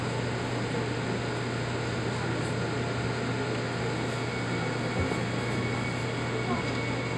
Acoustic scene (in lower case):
subway train